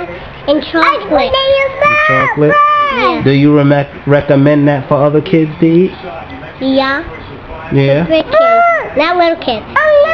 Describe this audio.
A girl speaks, another small child talks in the distance, a man speaks